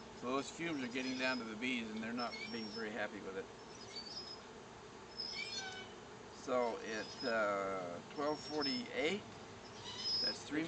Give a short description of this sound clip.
Insects buzzing as a man speaks while a series of metal gates creak